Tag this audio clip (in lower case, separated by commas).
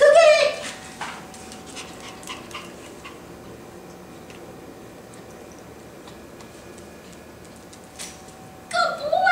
speech